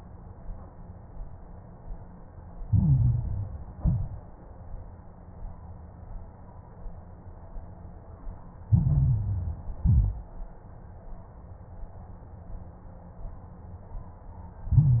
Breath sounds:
2.64-3.70 s: inhalation
2.64-3.70 s: crackles
3.76-4.24 s: exhalation
3.76-4.24 s: crackles
8.68-9.80 s: inhalation
8.68-9.80 s: crackles
9.82-10.31 s: exhalation
9.82-10.31 s: crackles
14.71-15.00 s: inhalation
14.71-15.00 s: crackles

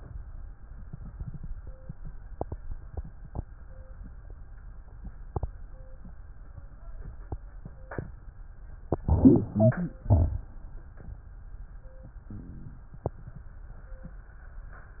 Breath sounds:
8.89-9.96 s: inhalation
8.89-9.96 s: wheeze
9.99-11.05 s: exhalation
9.99-11.05 s: crackles

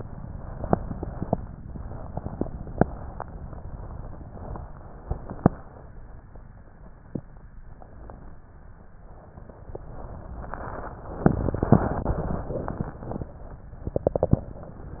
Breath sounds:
0.00-1.32 s: inhalation
1.62-4.24 s: exhalation
4.59-5.91 s: inhalation
9.85-10.93 s: inhalation
10.99-13.62 s: exhalation

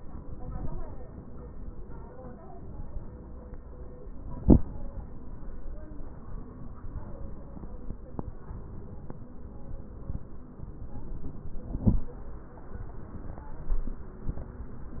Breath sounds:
0.20-1.07 s: inhalation
8.46-9.32 s: inhalation
10.65-11.65 s: inhalation
11.69-12.21 s: exhalation
11.69-12.21 s: crackles

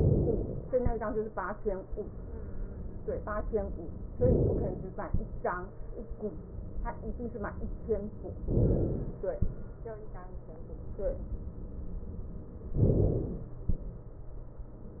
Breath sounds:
4.23-5.06 s: inhalation
8.50-9.32 s: inhalation
12.80-13.62 s: inhalation

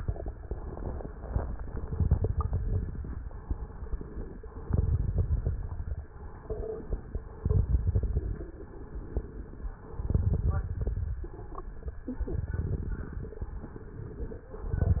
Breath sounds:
1.86-3.09 s: inhalation
1.86-3.09 s: crackles
3.36-4.40 s: exhalation
4.71-6.09 s: inhalation
4.71-6.09 s: crackles
6.26-7.31 s: exhalation
7.36-8.46 s: inhalation
7.36-8.46 s: crackles
8.79-9.83 s: exhalation
10.02-11.06 s: inhalation
10.02-11.06 s: crackles
11.21-12.03 s: exhalation
12.35-13.40 s: inhalation
12.35-13.40 s: crackles
13.53-14.57 s: exhalation

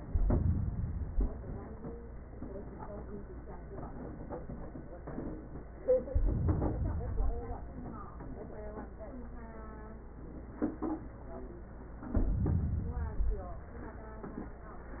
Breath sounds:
0.00-1.41 s: inhalation
6.03-7.45 s: inhalation
12.06-13.57 s: inhalation

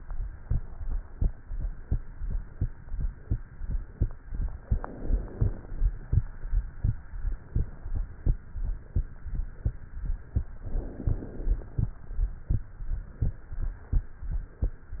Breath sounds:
4.60-5.83 s: inhalation
10.58-11.81 s: inhalation

